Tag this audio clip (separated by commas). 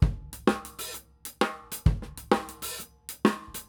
Drum kit, Music, Musical instrument, Percussion, Drum